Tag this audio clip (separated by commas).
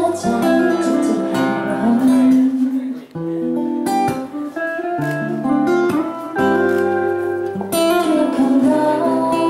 Music